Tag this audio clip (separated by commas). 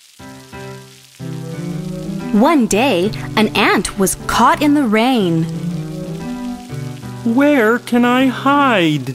Speech, Music, Rain on surface